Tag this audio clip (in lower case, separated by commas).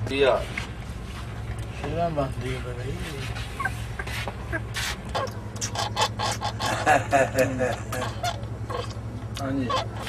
speech